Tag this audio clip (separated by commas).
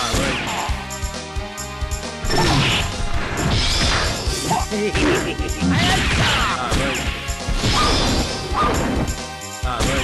Music